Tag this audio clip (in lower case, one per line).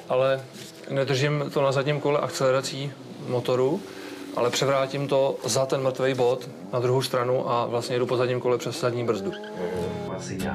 vehicle
speech